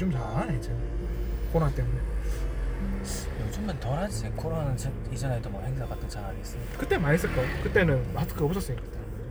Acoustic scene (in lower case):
car